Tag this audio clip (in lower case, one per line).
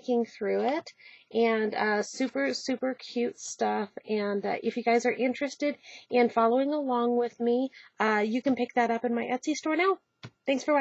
speech